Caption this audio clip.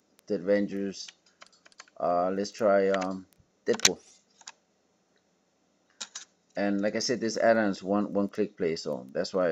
A man talking during typing on a computer keyboard